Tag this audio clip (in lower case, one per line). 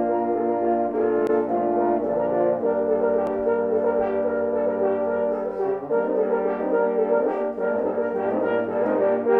brass instrument
french horn